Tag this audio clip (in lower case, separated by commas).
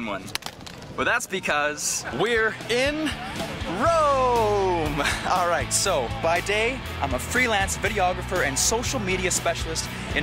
speech, music